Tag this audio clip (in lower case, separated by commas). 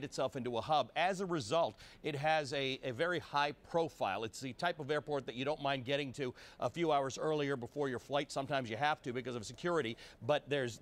speech